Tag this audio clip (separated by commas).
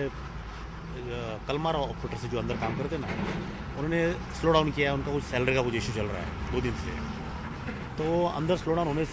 Speech